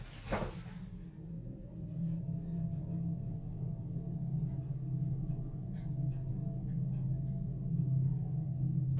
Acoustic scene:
elevator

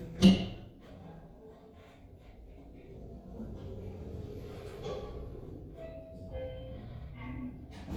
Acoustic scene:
elevator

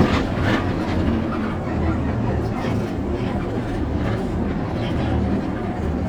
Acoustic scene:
bus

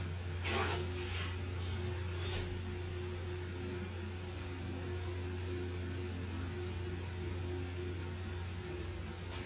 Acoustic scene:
restroom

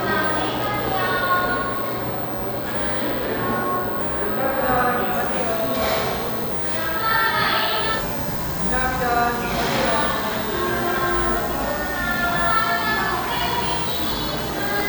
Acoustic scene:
cafe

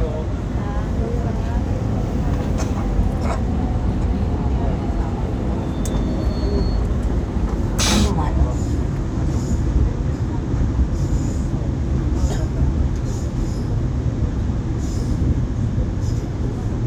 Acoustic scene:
subway train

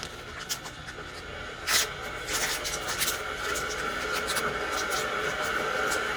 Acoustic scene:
kitchen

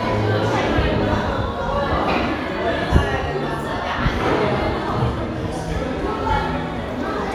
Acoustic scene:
crowded indoor space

